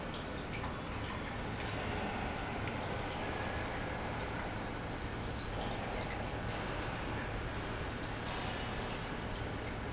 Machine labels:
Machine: pump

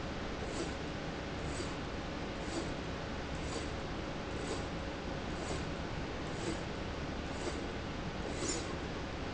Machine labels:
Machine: slide rail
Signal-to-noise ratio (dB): -6 dB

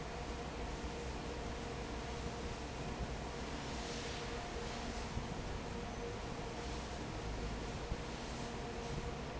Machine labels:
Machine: fan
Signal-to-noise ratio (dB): 0 dB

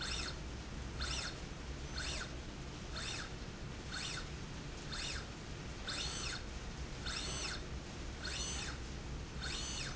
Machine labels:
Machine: slide rail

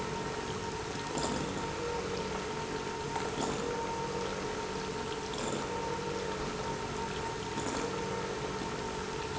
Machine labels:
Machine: pump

